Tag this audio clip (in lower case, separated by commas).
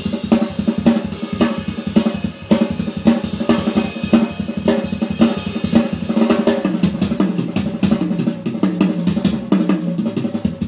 music, drum kit, drum